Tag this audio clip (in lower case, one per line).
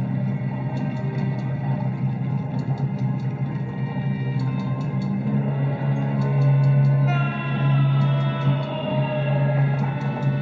music